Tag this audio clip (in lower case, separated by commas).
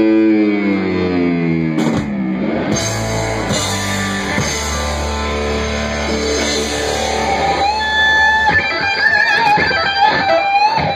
music, guitar